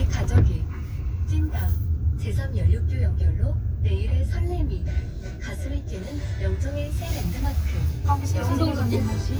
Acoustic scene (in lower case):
car